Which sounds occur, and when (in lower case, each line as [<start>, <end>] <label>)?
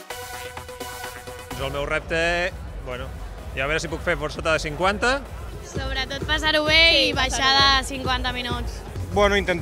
[0.00, 9.61] music
[1.47, 2.47] man speaking
[2.50, 9.61] speech noise
[2.79, 3.10] man speaking
[3.52, 5.24] man speaking
[5.60, 8.83] woman speaking
[9.10, 9.61] man speaking